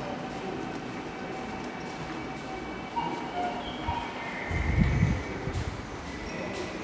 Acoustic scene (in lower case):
subway station